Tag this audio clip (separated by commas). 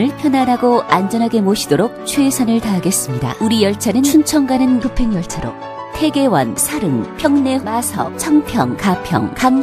Speech, Music